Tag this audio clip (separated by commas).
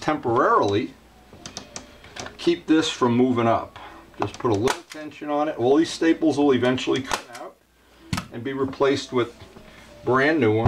Speech